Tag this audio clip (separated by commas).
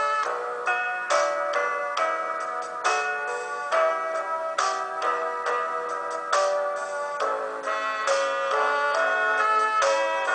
Music